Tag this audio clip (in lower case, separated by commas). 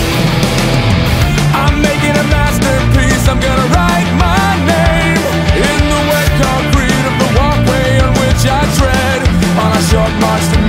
music